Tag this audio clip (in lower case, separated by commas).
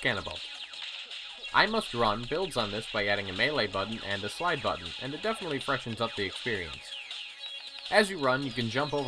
speech, music